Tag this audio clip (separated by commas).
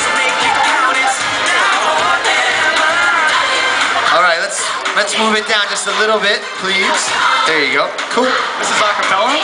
Speech, Female singing, Music